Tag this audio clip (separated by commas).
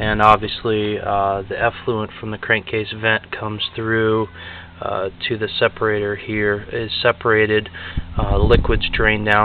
Speech